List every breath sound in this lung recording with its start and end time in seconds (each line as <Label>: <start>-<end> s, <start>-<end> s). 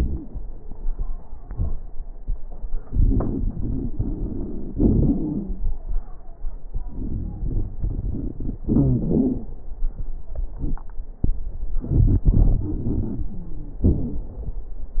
Inhalation: 2.85-4.76 s, 6.71-8.64 s, 11.80-13.33 s
Exhalation: 4.74-5.69 s, 8.66-9.53 s, 13.85-14.53 s
Wheeze: 4.77-5.69 s, 8.66-9.53 s, 13.29-13.85 s
Crackles: 2.85-4.76 s, 6.71-8.64 s, 11.80-13.33 s, 13.85-14.53 s